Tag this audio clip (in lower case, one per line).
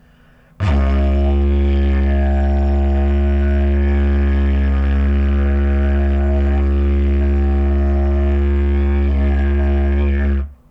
music
musical instrument